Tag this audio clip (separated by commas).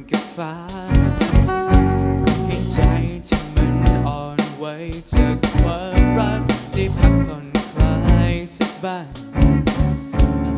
Music, Soul music